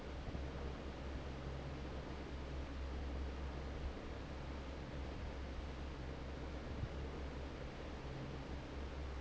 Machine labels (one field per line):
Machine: fan